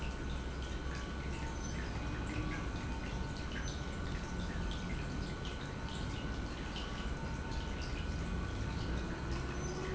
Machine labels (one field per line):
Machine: pump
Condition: normal